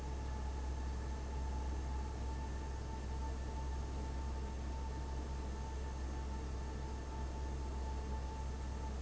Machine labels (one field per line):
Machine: fan